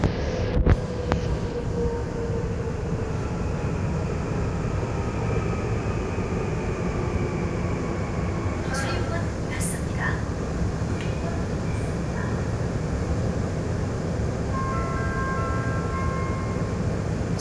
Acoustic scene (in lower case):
subway train